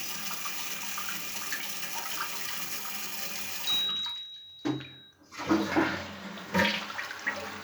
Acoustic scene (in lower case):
restroom